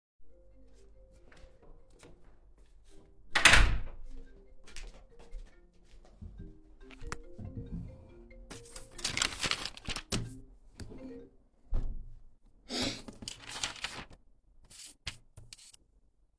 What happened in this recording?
I heard the phone and went to the office room, I took the phone and started working